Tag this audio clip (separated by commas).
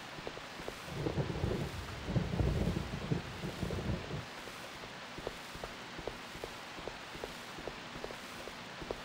Rain on surface